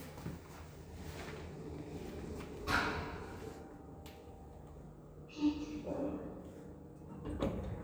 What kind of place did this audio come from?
elevator